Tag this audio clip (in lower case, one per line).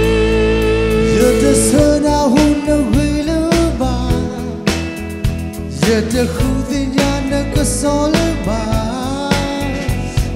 music